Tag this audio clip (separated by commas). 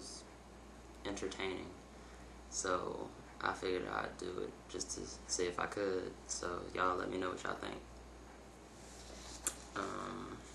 Speech